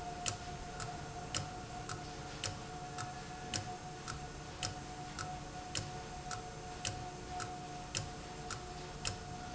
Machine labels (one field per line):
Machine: valve